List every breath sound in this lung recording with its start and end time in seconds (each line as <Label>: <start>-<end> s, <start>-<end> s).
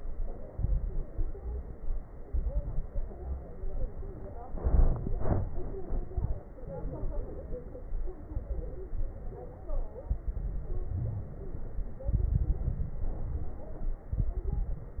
Inhalation: 0.53-1.12 s, 2.26-2.89 s, 4.56-5.18 s, 10.24-10.87 s, 12.09-13.00 s, 14.16-15.00 s
Exhalation: 1.10-1.76 s, 2.89-3.51 s, 5.17-5.79 s, 10.89-11.80 s, 13.02-14.08 s
Crackles: 0.53-1.08 s, 1.10-1.76 s, 2.26-2.89 s, 2.89-3.51 s, 4.52-5.15 s, 5.17-5.79 s, 12.09-13.00 s, 13.02-14.08 s, 14.16-15.00 s